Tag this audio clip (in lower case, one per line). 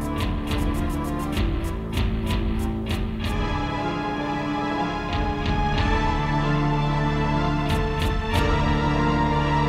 playing electronic organ